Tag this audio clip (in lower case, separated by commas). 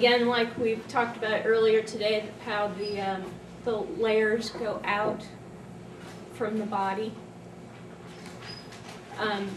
speech